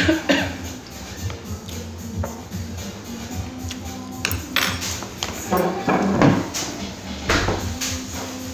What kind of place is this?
restaurant